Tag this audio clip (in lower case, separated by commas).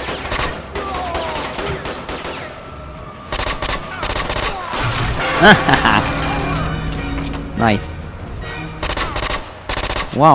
outside, urban or man-made, music, speech